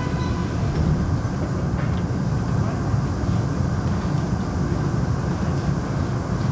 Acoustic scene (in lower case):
subway train